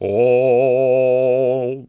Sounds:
Human voice, Male singing, Singing

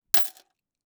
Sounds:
Coin (dropping), home sounds

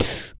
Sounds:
Breathing, Respiratory sounds

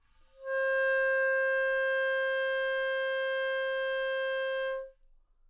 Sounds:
woodwind instrument, Musical instrument, Music

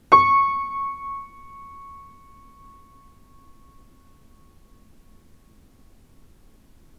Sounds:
Piano, Musical instrument, Music, Keyboard (musical)

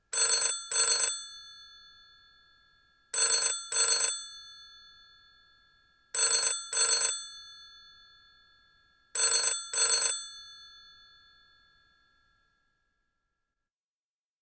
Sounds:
Telephone, Alarm

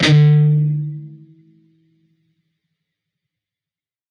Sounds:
Musical instrument, Plucked string instrument, Guitar, Music

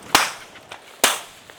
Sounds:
gunfire, Explosion

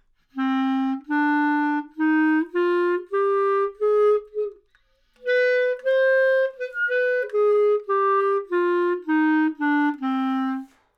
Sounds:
woodwind instrument, Music, Musical instrument

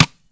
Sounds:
Tap

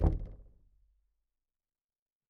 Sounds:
Knock, Door, home sounds

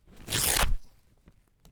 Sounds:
Tearing

